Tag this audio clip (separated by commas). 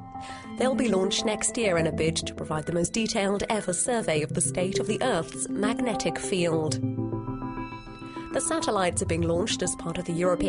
Music, Speech